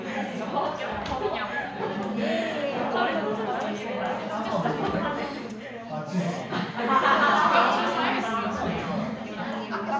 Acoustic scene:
crowded indoor space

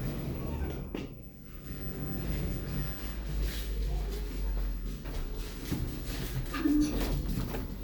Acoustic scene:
elevator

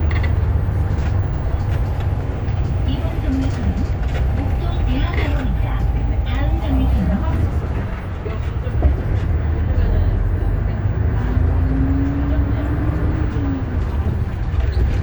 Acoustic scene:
bus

